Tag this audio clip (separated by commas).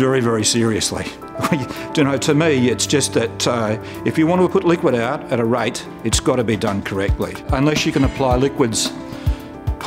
Music, Speech